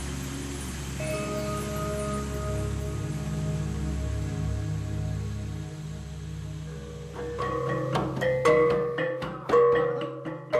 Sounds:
vibraphone

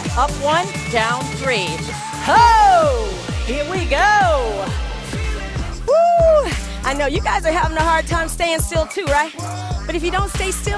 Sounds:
speech, music

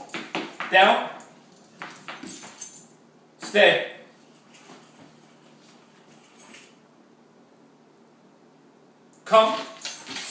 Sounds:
speech

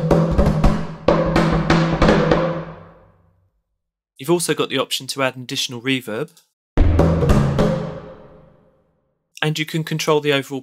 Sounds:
speech, music, musical instrument

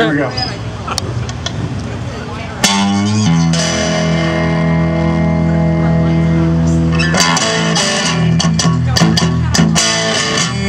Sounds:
speech, music

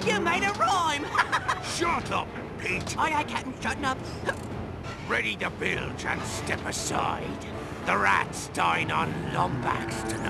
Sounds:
music, speech

